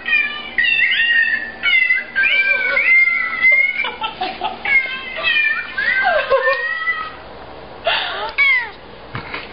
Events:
0.0s-9.5s: mechanisms
0.0s-2.0s: meow
2.1s-3.8s: meow
2.2s-2.9s: laughter
3.4s-4.8s: laughter
4.1s-4.5s: surface contact
4.6s-7.2s: meow
4.8s-4.9s: generic impact sounds
5.8s-5.9s: tick
6.0s-6.7s: laughter
6.4s-6.6s: tick
7.0s-7.1s: generic impact sounds
7.8s-8.3s: breathing
8.2s-8.3s: tick
8.3s-8.7s: meow
9.1s-9.4s: generic impact sounds
9.5s-9.5s: tick

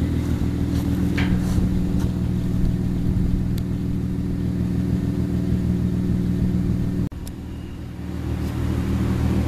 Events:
0.0s-9.4s: medium engine (mid frequency)
0.7s-0.8s: generic impact sounds
1.1s-1.3s: generic impact sounds
1.4s-1.6s: surface contact
2.0s-2.1s: generic impact sounds
2.2s-2.3s: generic impact sounds
3.6s-3.6s: tick
7.3s-7.3s: tick
7.5s-7.9s: generic impact sounds
8.4s-8.5s: surface contact

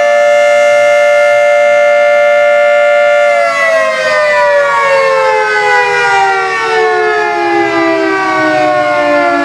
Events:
0.0s-9.4s: siren

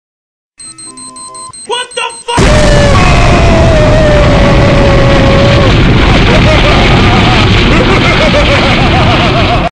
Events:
0.5s-1.5s: music
0.5s-2.4s: alarm
1.6s-2.4s: male speech
1.6s-2.3s: shout
2.3s-9.7s: sound effect
2.5s-5.6s: human voice
6.0s-7.3s: laughter
7.6s-9.7s: laughter

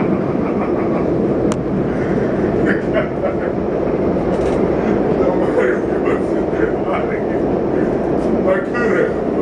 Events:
0.0s-9.4s: train
0.1s-1.0s: generic impact sounds
1.4s-1.7s: generic impact sounds
2.6s-3.6s: human sounds
4.3s-4.7s: generic impact sounds
5.2s-7.4s: human sounds
8.1s-8.3s: generic impact sounds
8.5s-9.2s: human sounds

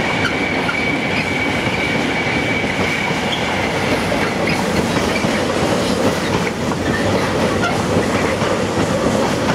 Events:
0.0s-9.5s: clickety-clack
0.0s-9.5s: train

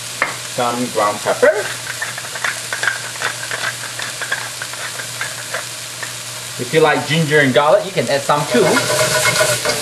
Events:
0.0s-9.8s: mechanisms
0.0s-9.8s: sizzle
6.5s-8.8s: man speaking
8.5s-9.8s: stir
8.6s-9.8s: surface contact

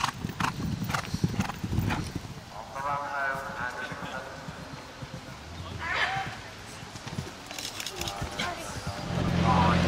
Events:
0.0s-0.2s: clip-clop
0.0s-2.4s: wind noise (microphone)
0.0s-9.8s: background noise
0.3s-0.6s: clip-clop
0.8s-1.0s: clip-clop
1.3s-1.5s: clip-clop
1.9s-2.1s: clip-clop
2.5s-4.6s: man speaking
2.8s-3.0s: clip-clop
3.3s-3.5s: clip-clop
3.8s-4.0s: clip-clop
4.4s-4.7s: clip-clop
5.0s-5.3s: clip-clop
5.5s-5.7s: clip-clop
6.0s-6.3s: clip-clop
6.9s-7.3s: clip-clop
7.5s-8.1s: generic impact sounds
8.0s-8.4s: clip-clop
8.2s-8.7s: human sounds
8.7s-9.1s: clip-clop
8.9s-9.8s: engine
9.0s-9.8s: man speaking

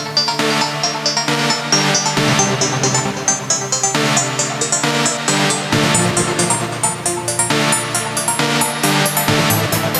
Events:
0.0s-9.9s: music

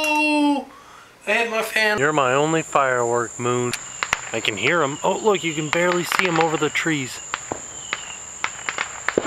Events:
0.0s-0.7s: man speaking
0.0s-9.2s: background noise
0.6s-1.1s: breathing
1.3s-3.7s: man speaking
2.0s-9.2s: insect
3.7s-4.8s: firecracker
4.3s-6.1s: man speaking
5.7s-6.5s: firecracker
6.2s-7.1s: man speaking
7.3s-7.6s: firecracker
7.8s-8.2s: firecracker
8.4s-9.2s: firecracker

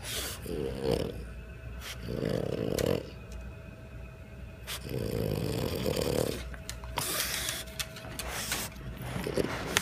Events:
0.0s-9.8s: male singing
0.0s-9.8s: mechanisms
0.0s-9.8s: television
0.0s-0.4s: dog
0.4s-1.3s: growling
1.8s-2.0s: dog
2.0s-3.1s: growling
2.3s-2.6s: generic impact sounds
2.8s-2.9s: generic impact sounds
3.3s-3.4s: generic impact sounds
4.7s-4.8s: dog
4.8s-6.4s: growling
6.7s-6.8s: generic impact sounds
6.9s-7.6s: generic impact sounds
7.0s-7.6s: dog
7.8s-8.3s: generic impact sounds
8.2s-8.7s: dog
8.5s-8.6s: generic impact sounds
8.7s-8.9s: generic impact sounds
9.0s-9.8s: dog
9.1s-9.5s: growling
9.7s-9.8s: generic impact sounds

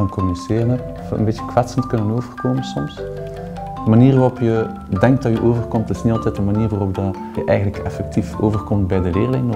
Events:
0.0s-0.7s: man speaking
0.0s-9.5s: music
1.1s-3.0s: man speaking
3.8s-4.7s: man speaking
4.9s-7.2s: man speaking
7.4s-9.5s: man speaking

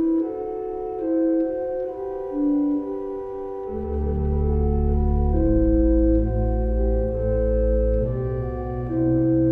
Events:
0.0s-9.5s: music

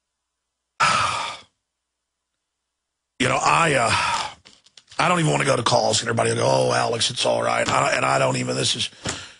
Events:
0.0s-9.3s: background noise
0.8s-1.5s: breathing
2.3s-2.4s: tick
3.2s-4.0s: male speech
3.9s-4.4s: breathing
4.5s-5.0s: paper rustling
4.6s-4.7s: tick
4.8s-4.8s: tick
5.0s-9.0s: male speech
9.0s-9.2s: tap
9.1s-9.3s: breathing

